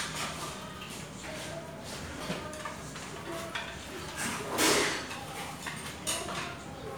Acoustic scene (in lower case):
restaurant